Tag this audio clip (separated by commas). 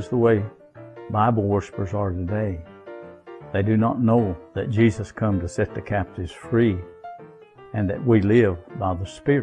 Music, Speech